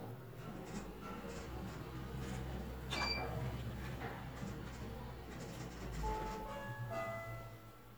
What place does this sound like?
elevator